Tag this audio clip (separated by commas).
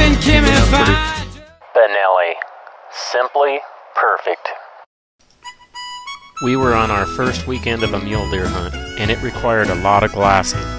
Speech, Music